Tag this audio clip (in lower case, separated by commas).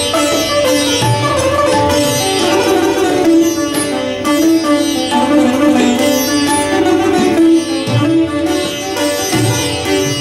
percussion, tabla, drum